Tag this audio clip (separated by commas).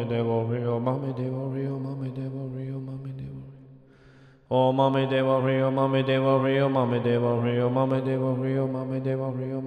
Mantra